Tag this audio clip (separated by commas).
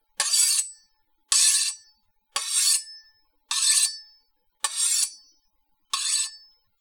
Domestic sounds, silverware